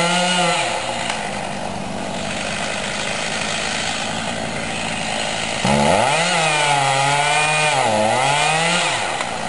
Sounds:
chainsawing trees, chainsaw

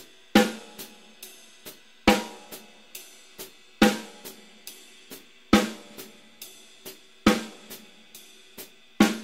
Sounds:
playing bass drum

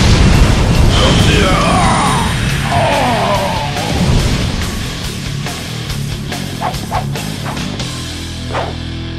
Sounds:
music, speech

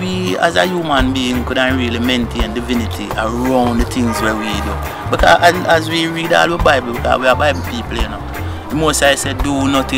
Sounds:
speech, music

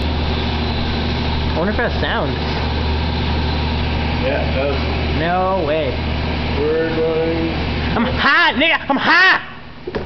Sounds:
speech

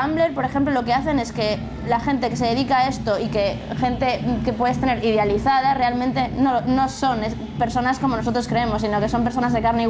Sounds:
speech, music

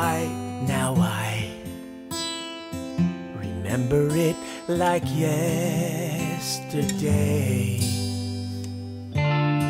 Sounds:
acoustic guitar, music

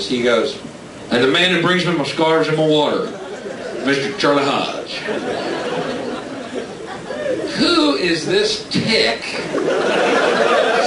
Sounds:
speech

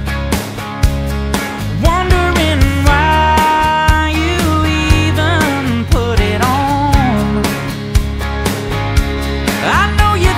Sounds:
music

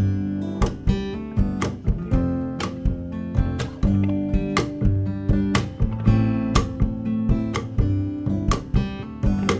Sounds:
music

